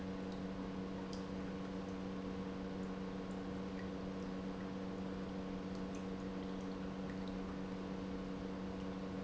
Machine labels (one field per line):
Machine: pump